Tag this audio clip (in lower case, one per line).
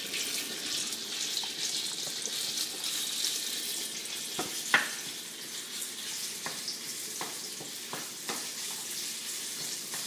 inside a small room